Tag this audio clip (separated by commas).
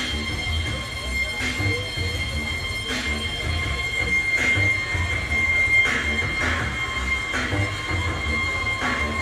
Music, Speech